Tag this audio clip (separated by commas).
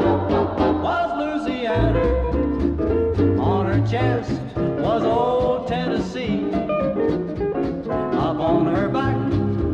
Swing music, Singing